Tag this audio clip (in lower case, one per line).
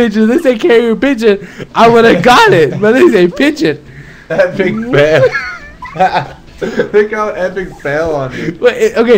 speech